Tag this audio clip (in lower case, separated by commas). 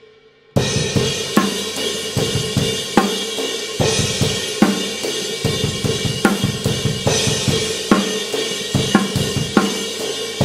music, snare drum